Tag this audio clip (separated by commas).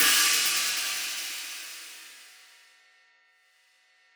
Musical instrument, Cymbal, Music, Percussion, Hi-hat, Crash cymbal